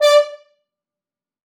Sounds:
musical instrument, music, brass instrument

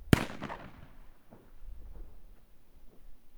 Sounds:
explosion, fireworks

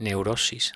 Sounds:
human voice

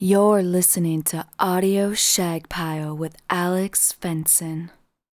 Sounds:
human voice, female speech, speech

